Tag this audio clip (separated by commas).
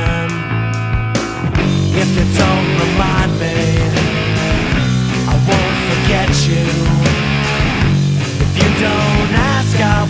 Music, Punk rock